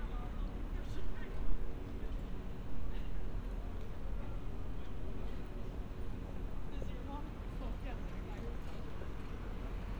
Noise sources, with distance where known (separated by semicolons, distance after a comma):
person or small group talking